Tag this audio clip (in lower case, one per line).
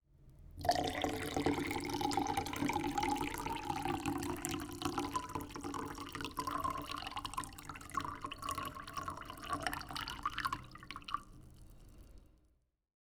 liquid